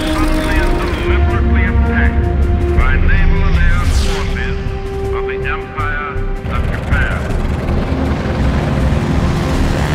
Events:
0.0s-0.6s: radio
0.0s-0.6s: man speaking
0.0s-1.1s: propeller
0.0s-9.9s: music
0.0s-9.9s: video game sound
0.8s-1.4s: man speaking
0.8s-1.4s: radio
1.5s-2.1s: radio
1.5s-2.1s: man speaking
2.8s-3.8s: man speaking
2.8s-3.8s: radio
3.3s-5.1s: propeller
4.0s-4.6s: man speaking
4.0s-4.6s: radio
5.1s-5.6s: radio
5.1s-5.6s: man speaking
5.7s-6.2s: man speaking
5.7s-6.2s: radio
6.4s-9.9s: propeller
6.5s-6.7s: man speaking
6.5s-6.7s: radio
6.9s-7.2s: man speaking
6.9s-7.2s: radio

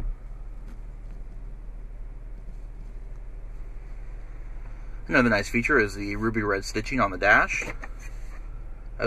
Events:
0.0s-9.0s: motor vehicle (road)
0.0s-9.0s: wind
0.6s-0.7s: generic impact sounds
1.0s-1.1s: generic impact sounds
1.3s-1.4s: generic impact sounds
2.3s-3.2s: generic impact sounds
3.5s-3.6s: surface contact
3.8s-4.0s: surface contact
4.6s-5.0s: breathing
5.1s-7.7s: male speech
7.6s-7.9s: generic impact sounds
8.0s-8.4s: generic impact sounds

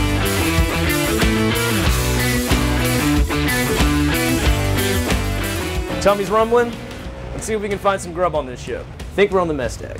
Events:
0.0s-9.9s: music
5.8s-6.7s: man speaking
7.4s-8.8s: man speaking
9.1s-9.9s: man speaking

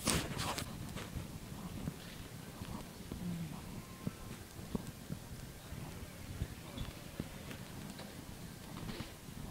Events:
0.0s-0.6s: generic impact sounds
0.0s-9.5s: background noise
0.8s-1.2s: generic impact sounds
1.5s-2.1s: generic impact sounds
2.5s-2.7s: generic impact sounds
3.0s-3.8s: generic impact sounds
3.1s-3.7s: human sounds
3.6s-6.3s: music
4.0s-4.3s: generic impact sounds
4.7s-5.1s: generic impact sounds
6.6s-6.8s: generic impact sounds
7.1s-7.5s: generic impact sounds
7.8s-8.1s: generic impact sounds
8.5s-9.1s: generic impact sounds

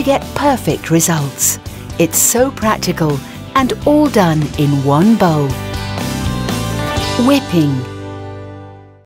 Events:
0.0s-0.2s: female speech
0.0s-9.0s: music
0.3s-1.5s: female speech
1.6s-1.9s: breathing
2.0s-3.2s: female speech
3.2s-3.4s: breathing
3.5s-5.5s: female speech
5.0s-5.1s: tick
7.1s-7.9s: female speech

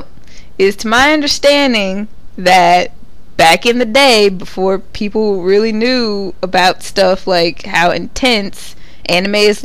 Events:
0.0s-9.6s: mechanisms
0.2s-0.5s: breathing
0.6s-2.0s: woman speaking
2.0s-2.1s: tick
2.3s-2.4s: tick
2.3s-2.9s: woman speaking
3.0s-3.1s: tick
3.4s-6.3s: woman speaking
6.4s-8.7s: woman speaking
8.7s-9.0s: breathing
9.0s-9.6s: woman speaking

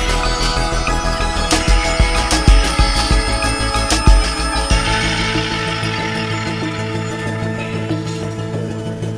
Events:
0.0s-9.1s: music

